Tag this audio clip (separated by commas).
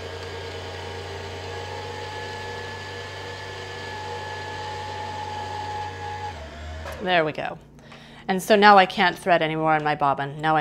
Speech